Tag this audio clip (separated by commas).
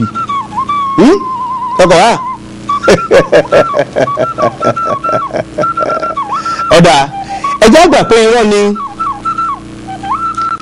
inside a small room, Speech, Music